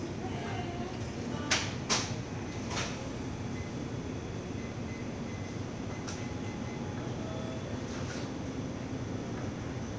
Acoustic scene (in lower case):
crowded indoor space